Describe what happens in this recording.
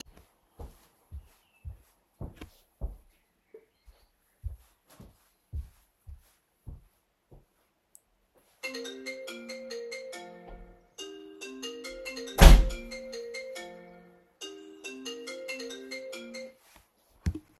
I am walking through the room; someone calls me and I close the door